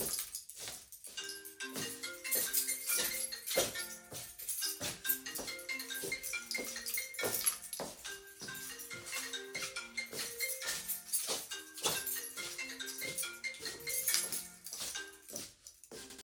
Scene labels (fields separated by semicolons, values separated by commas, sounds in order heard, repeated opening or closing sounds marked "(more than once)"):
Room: bedroom; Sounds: footsteps, keys, phone ringing